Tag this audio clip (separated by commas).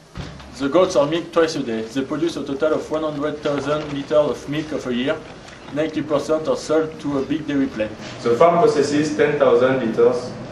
Speech